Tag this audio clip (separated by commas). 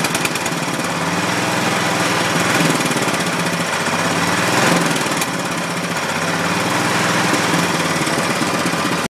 vroom, Engine